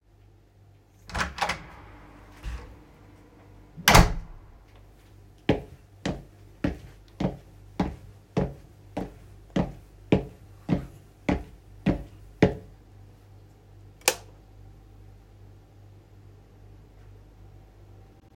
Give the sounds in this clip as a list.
door, footsteps, light switch